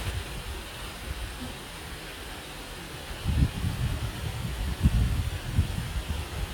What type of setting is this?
park